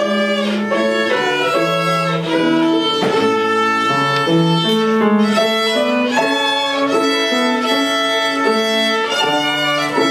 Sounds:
musical instrument, music, fiddle

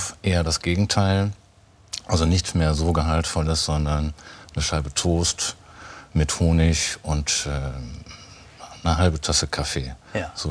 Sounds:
speech

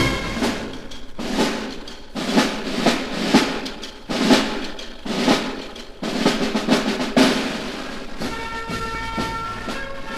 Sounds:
music, snare drum, percussion, drum roll

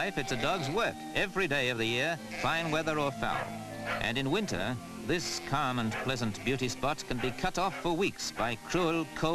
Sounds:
livestock, speech, animal, sheep

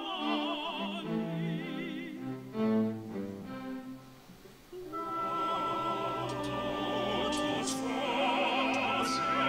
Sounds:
double bass, singing, choir, music

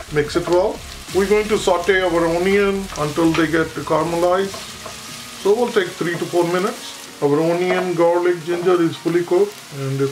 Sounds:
speech, music, inside a small room

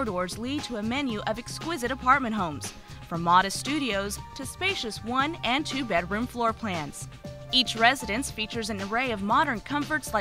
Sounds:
music, speech

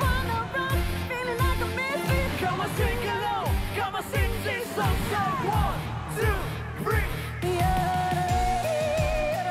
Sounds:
yodelling

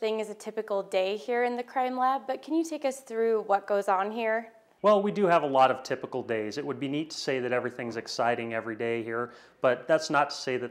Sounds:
speech

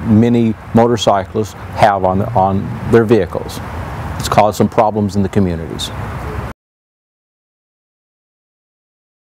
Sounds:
speech

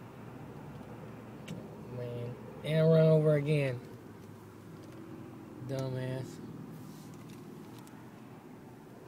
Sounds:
speech

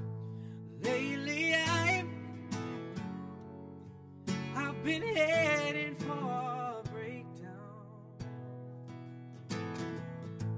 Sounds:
musical instrument, music

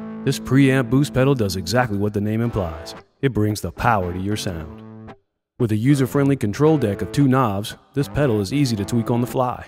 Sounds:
musical instrument, plucked string instrument, guitar, music, speech

